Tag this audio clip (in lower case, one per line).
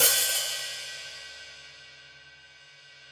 music
cymbal
percussion
hi-hat
musical instrument